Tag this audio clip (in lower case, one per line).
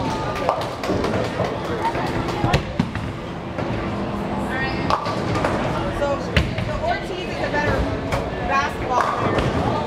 bowling impact